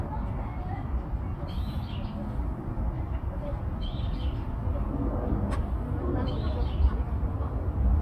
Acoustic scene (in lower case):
park